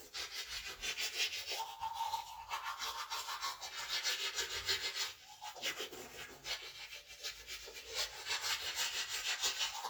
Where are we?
in a restroom